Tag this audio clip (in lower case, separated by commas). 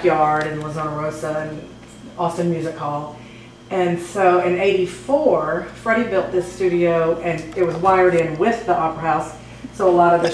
speech